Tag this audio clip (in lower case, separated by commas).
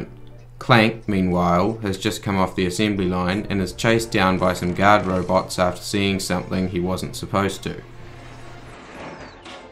music, speech